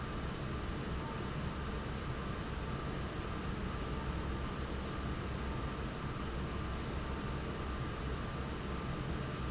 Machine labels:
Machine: fan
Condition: normal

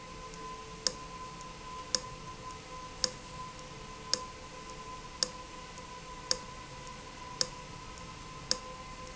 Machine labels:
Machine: valve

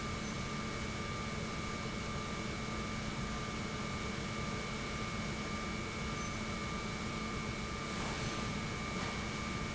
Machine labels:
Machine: pump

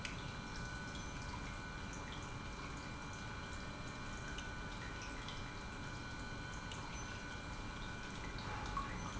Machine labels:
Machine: pump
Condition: normal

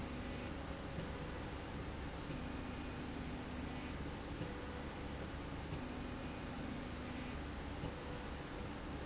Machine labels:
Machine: slide rail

